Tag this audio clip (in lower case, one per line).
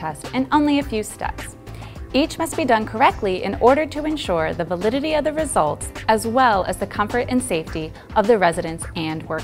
music
speech